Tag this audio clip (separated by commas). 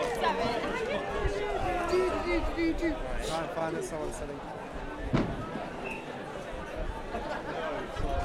Crowd, Fireworks, Human group actions, Explosion